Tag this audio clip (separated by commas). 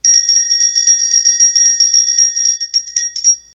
Bell